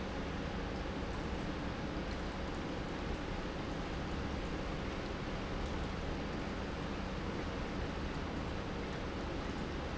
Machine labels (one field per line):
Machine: pump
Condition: normal